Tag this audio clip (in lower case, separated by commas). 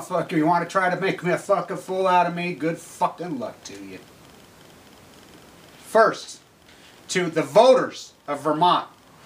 speech